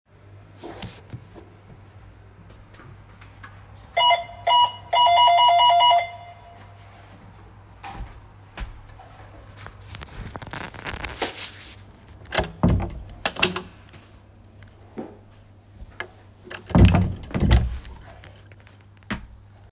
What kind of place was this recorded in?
hallway